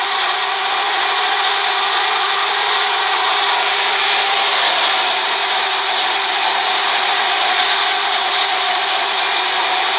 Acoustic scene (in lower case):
subway train